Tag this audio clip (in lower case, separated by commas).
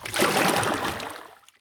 splatter, liquid